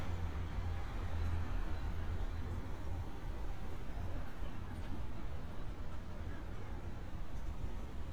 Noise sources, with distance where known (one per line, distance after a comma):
background noise